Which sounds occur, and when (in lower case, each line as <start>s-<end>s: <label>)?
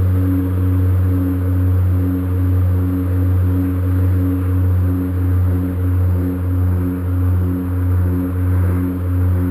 0.0s-9.5s: motorboat
0.0s-9.5s: waves